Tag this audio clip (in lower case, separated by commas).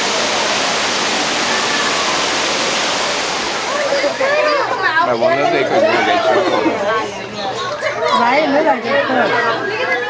speech, outside, rural or natural